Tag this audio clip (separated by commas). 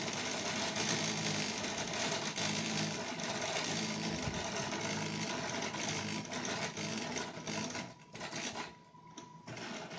printer printing